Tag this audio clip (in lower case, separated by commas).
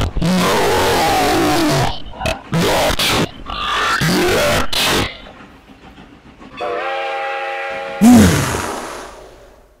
outside, rural or natural